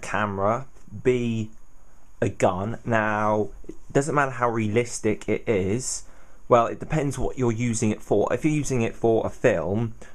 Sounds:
Speech

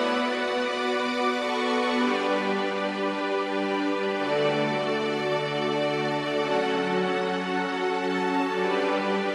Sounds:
Theme music, New-age music, Background music, Music

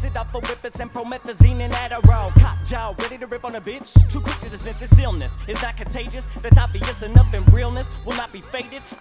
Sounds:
Pop music, Music

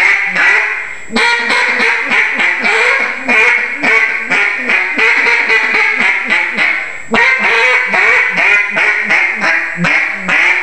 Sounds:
Quack

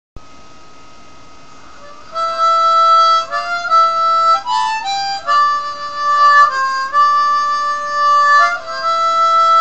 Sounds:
playing harmonica

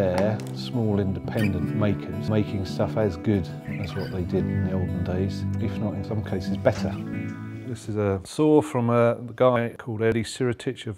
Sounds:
Music, Speech

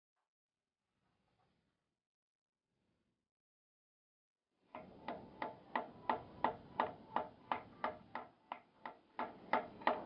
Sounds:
Wood

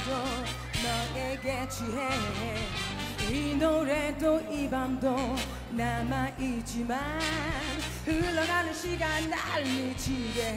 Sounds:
Music of Asia, Music

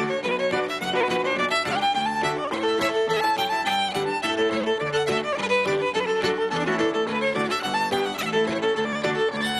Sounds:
fiddle, Music, Musical instrument

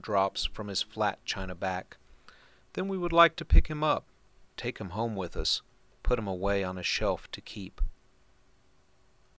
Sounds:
Speech

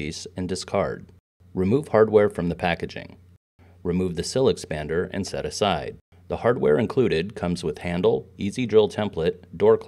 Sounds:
Speech

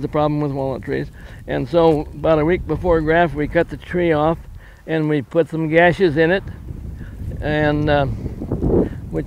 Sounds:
Speech

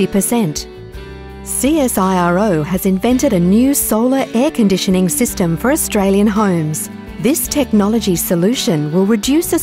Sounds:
Music, Speech

